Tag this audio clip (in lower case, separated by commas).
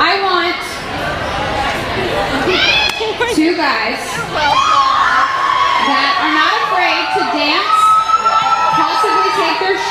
cheering, crowd